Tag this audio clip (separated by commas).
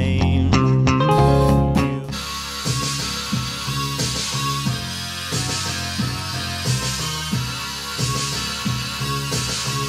Heavy metal, Electric guitar, Music, Bass guitar, Plucked string instrument, Musical instrument, Guitar